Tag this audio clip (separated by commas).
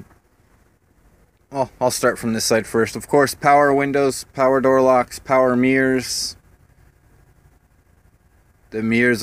Speech